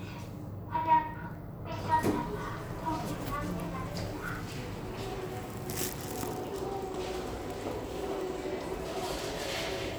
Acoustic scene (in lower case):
elevator